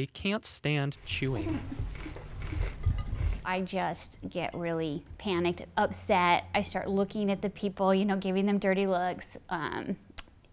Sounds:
Speech

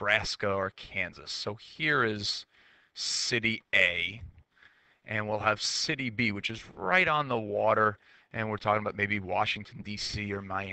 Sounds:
Speech

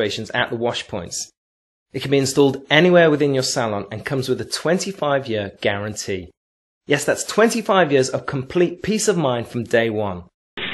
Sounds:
Speech, Narration

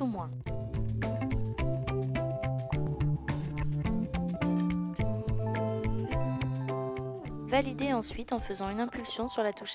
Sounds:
Music, Speech

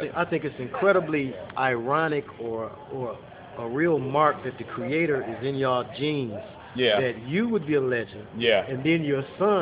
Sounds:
Speech

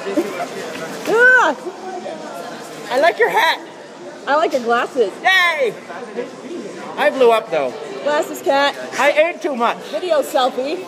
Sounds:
Speech

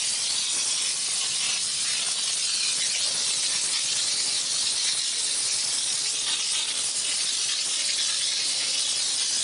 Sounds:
Steam

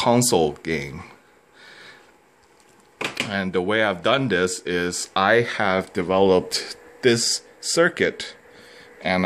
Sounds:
Speech

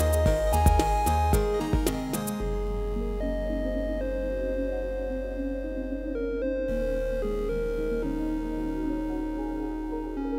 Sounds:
Music

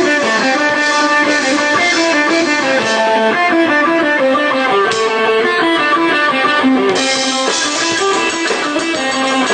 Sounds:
Music

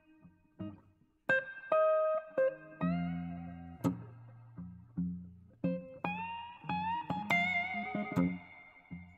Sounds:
Music

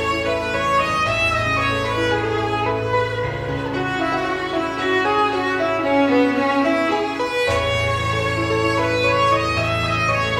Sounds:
Violin, Musical instrument, Piano, Music, Keyboard (musical), Bowed string instrument

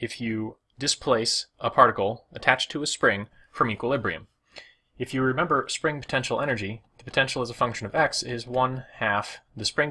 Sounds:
Speech

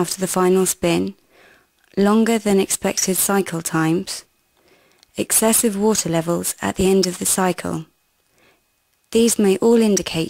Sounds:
Speech

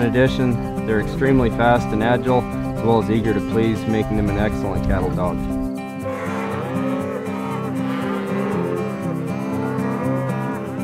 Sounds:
Cattle, livestock, Moo

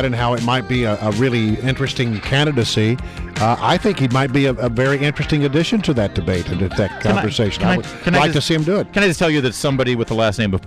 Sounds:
Speech, Music

